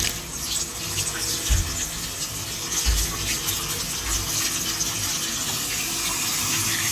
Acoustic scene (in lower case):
restroom